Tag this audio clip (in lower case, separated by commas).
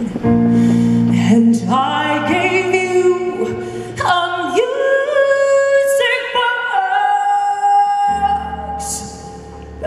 music